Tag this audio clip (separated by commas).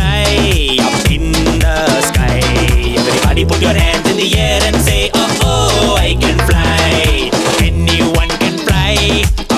Music, Funny music